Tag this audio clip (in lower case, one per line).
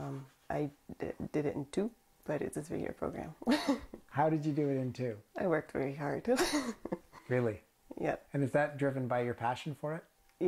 speech